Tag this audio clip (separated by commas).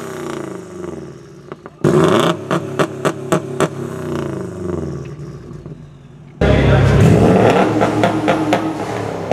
outside, urban or man-made, Car, Vehicle